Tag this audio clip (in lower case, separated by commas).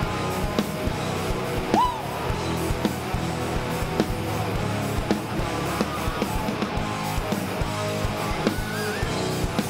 music